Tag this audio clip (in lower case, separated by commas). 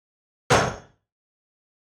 explosion, gunshot